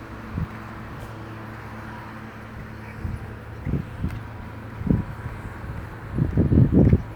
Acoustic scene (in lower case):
residential area